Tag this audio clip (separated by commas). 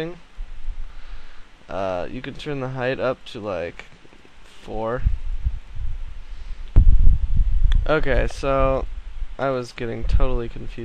Speech